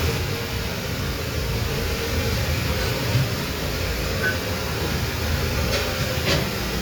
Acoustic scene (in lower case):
kitchen